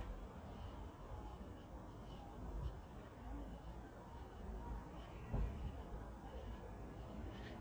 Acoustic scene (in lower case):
residential area